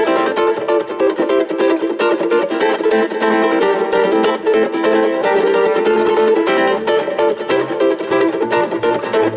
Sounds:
Ukulele, Music, Mandolin, Musical instrument

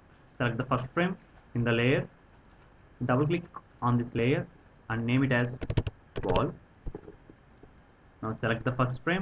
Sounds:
Speech

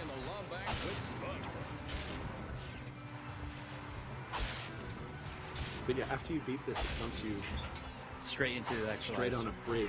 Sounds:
Music, Speech

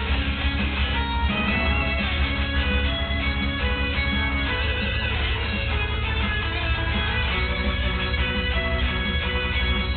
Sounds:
Music, Musical instrument, Guitar, Plucked string instrument

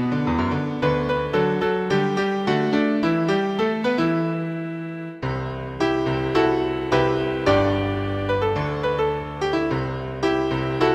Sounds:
Music

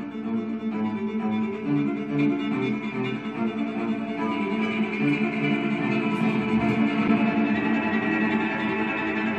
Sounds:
Cello, Bowed string instrument, Music

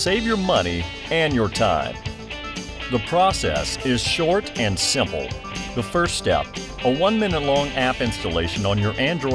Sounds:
Speech, Music

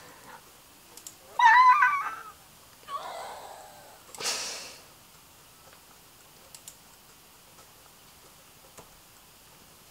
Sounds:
inside a small room

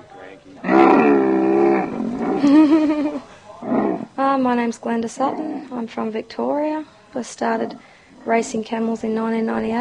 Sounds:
livestock

